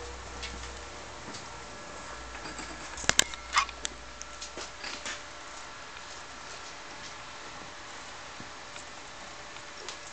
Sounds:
inside a small room

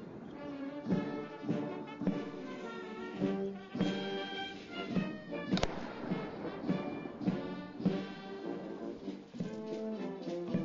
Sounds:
music

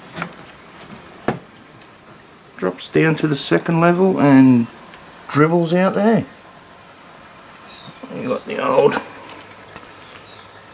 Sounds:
animal
outside, rural or natural
speech

